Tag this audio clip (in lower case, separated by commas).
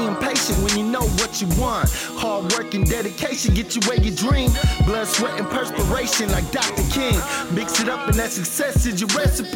music, blues